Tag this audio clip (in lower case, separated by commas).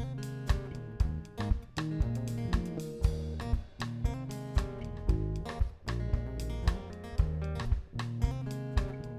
music